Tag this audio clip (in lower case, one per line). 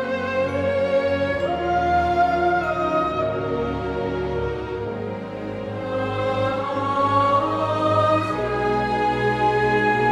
opera